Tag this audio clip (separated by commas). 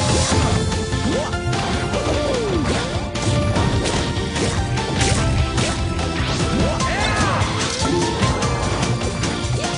Music